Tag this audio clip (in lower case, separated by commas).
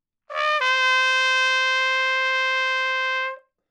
brass instrument, musical instrument, trumpet, music